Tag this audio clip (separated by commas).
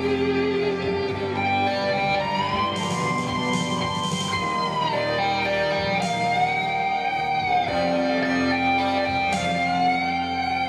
Music